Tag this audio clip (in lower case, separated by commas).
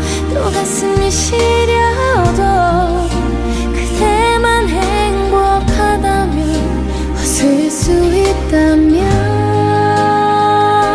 music